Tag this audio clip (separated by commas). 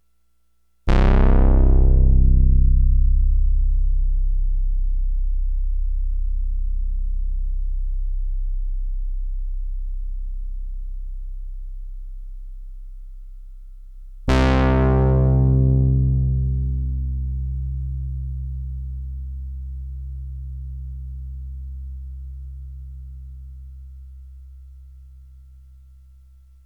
Keyboard (musical), Musical instrument, Music